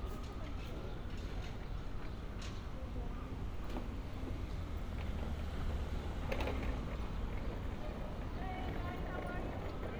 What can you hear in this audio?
unidentified human voice